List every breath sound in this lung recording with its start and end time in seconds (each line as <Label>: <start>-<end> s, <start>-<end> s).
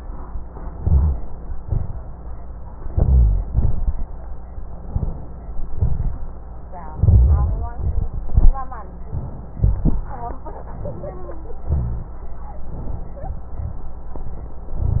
Inhalation: 0.72-1.50 s, 2.87-3.47 s, 4.88-5.49 s, 6.91-7.74 s, 11.65-12.22 s
Exhalation: 1.59-2.37 s, 3.49-4.10 s, 5.77-6.38 s, 7.80-8.58 s
Rhonchi: 0.72-1.50 s, 1.59-2.37 s, 2.87-3.47 s, 3.49-4.10 s, 4.88-5.49 s, 5.77-6.38 s, 6.91-7.74 s, 11.65-12.22 s
Crackles: 7.80-8.58 s